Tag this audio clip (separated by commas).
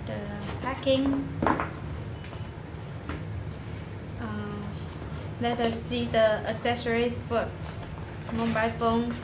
Speech